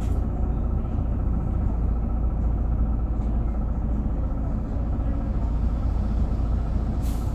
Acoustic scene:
bus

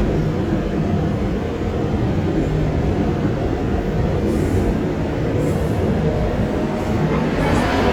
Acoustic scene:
subway train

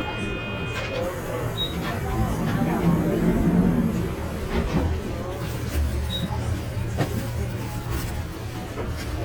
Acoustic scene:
bus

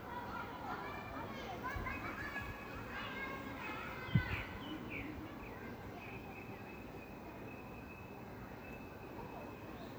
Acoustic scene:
park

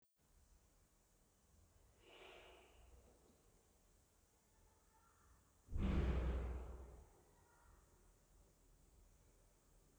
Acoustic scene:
elevator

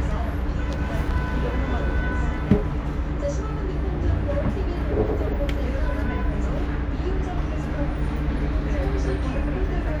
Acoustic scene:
bus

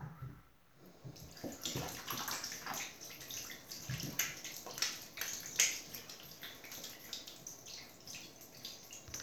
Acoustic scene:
restroom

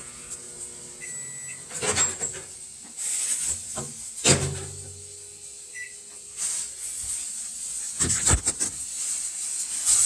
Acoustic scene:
kitchen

